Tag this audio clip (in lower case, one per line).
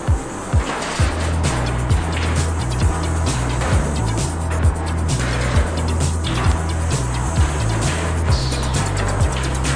music